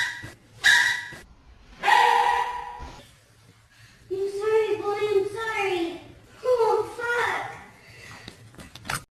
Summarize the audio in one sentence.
A dog whimpering with a boy sounding concerned about something